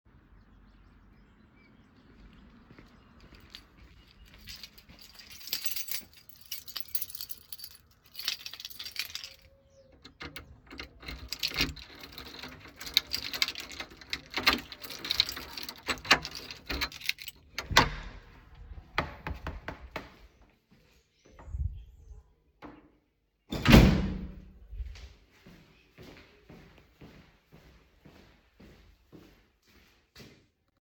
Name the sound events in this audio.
footsteps, keys, door